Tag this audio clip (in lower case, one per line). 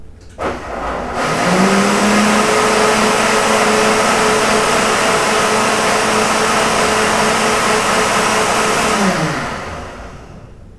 domestic sounds